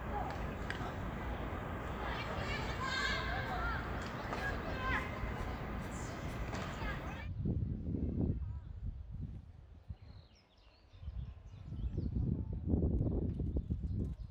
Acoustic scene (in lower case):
park